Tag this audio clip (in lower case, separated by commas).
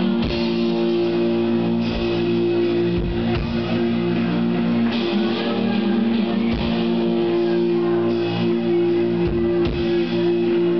inside a large room or hall, singing, music